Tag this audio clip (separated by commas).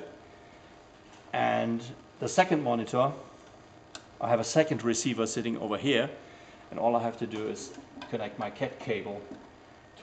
inside a large room or hall, Speech